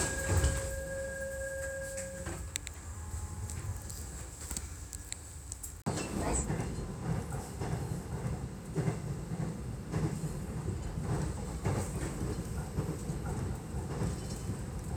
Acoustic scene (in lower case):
subway train